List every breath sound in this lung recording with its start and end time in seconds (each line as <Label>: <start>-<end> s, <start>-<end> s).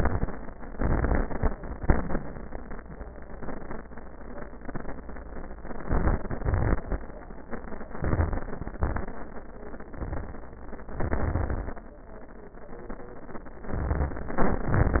Inhalation: 0.72-1.76 s, 5.85-6.37 s, 7.93-8.76 s, 10.97-11.87 s, 13.78-14.68 s
Exhalation: 0.00-0.43 s, 1.79-2.31 s, 6.41-7.01 s, 8.78-9.21 s, 14.71-15.00 s
Crackles: 0.00-0.43 s, 0.72-1.76 s, 1.79-2.31 s, 5.85-6.37 s, 6.41-7.01 s, 7.93-8.76 s, 8.78-9.21 s, 10.97-11.87 s, 13.78-14.68 s, 14.71-15.00 s